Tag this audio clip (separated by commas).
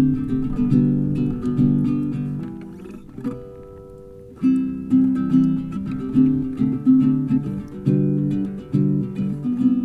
Music